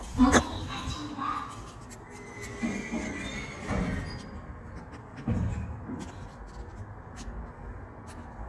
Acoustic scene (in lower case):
elevator